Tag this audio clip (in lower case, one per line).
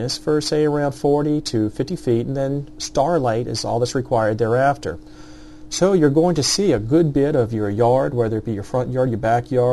speech